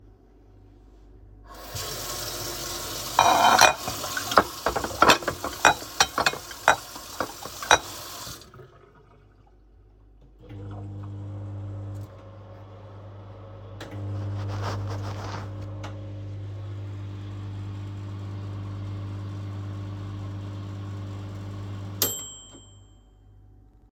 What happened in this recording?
I washed dishes in a sink after that I put them on the dryer. Then I heat the food in the microwave